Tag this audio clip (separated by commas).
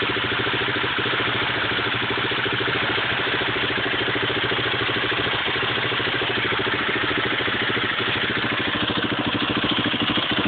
Vehicle, Medium engine (mid frequency), Engine